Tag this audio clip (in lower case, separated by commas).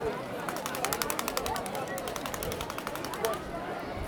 crowd, human group actions